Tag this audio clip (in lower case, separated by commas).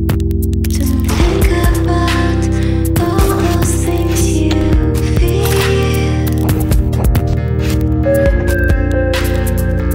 music